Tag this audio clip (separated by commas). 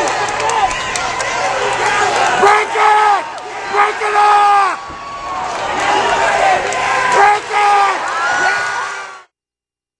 Speech